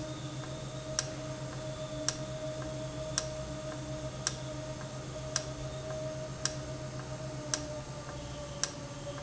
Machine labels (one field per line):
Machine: valve